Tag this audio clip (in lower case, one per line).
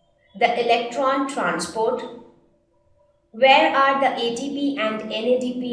speech